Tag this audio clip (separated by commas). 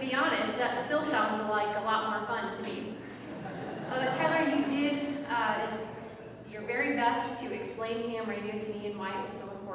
Speech